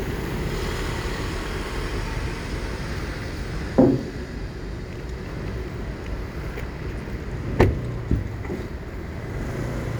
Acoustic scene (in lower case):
street